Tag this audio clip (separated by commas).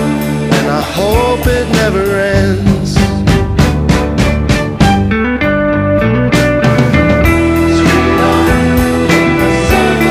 Electric guitar, Music